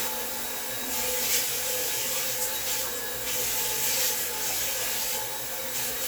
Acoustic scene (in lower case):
restroom